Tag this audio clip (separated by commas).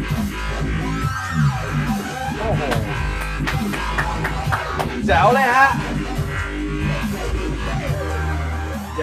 Sampler, Speech, Music